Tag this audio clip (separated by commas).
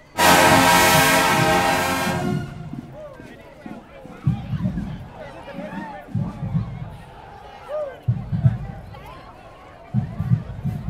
people marching